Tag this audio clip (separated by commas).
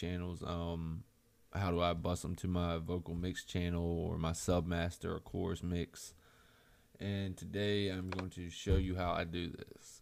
Speech